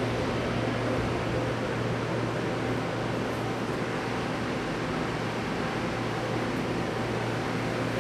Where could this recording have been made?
in a subway station